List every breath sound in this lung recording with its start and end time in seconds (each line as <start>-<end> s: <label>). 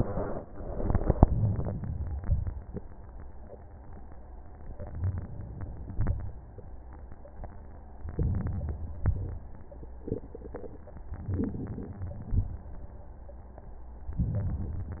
1.23-2.27 s: inhalation
2.30-2.98 s: exhalation
4.58-5.91 s: inhalation
5.91-6.50 s: exhalation
5.91-6.50 s: crackles
8.04-9.07 s: inhalation
9.07-9.76 s: exhalation
11.10-11.87 s: crackles
11.14-11.91 s: inhalation
11.89-12.66 s: exhalation
11.89-12.66 s: crackles
14.20-14.97 s: inhalation